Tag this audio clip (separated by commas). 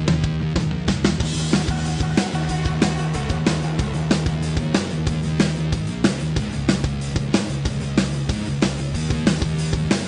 Music, Theme music